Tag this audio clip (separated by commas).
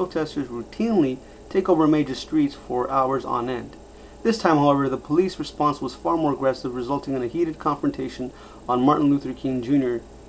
Speech